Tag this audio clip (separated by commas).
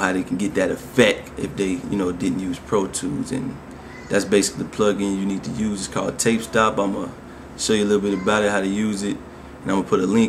Speech